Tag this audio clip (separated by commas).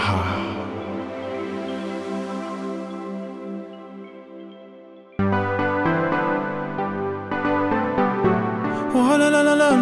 Music, New-age music